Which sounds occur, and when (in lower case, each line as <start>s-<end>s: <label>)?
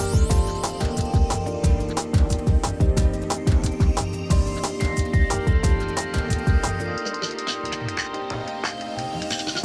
0.0s-9.6s: music